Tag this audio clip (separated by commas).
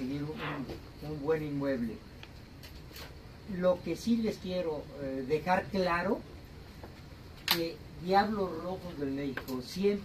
Speech